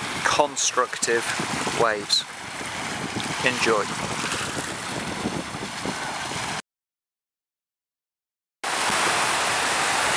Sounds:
waves, ocean, speech

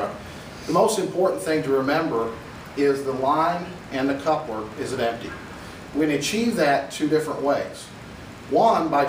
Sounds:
speech

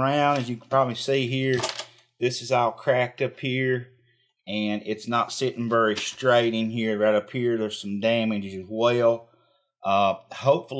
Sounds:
speech

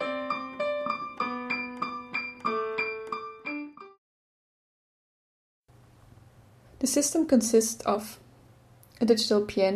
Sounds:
music, speech

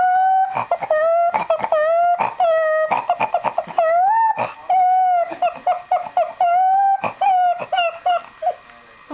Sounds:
pets, animal, whimper

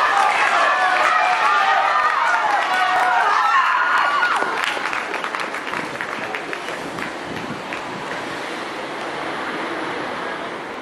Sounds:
outside, urban or man-made, speech

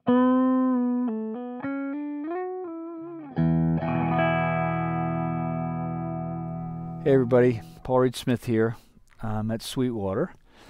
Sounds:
music, speech

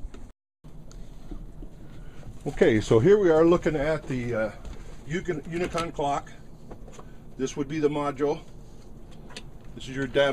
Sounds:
tick, speech

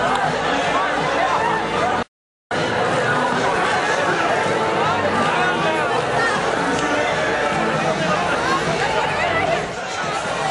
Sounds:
speech, crowd, music, people crowd

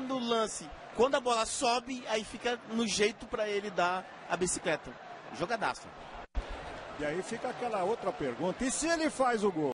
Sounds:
speech

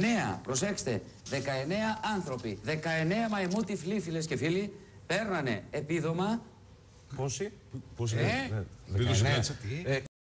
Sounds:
speech

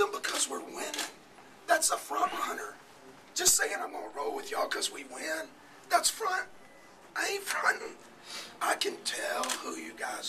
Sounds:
speech

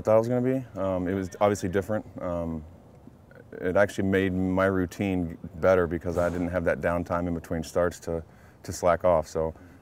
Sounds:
speech

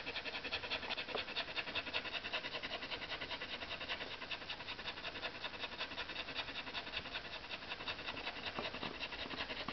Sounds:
animal, domestic animals

